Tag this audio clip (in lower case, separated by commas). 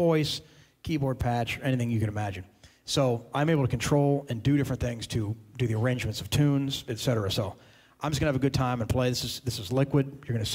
speech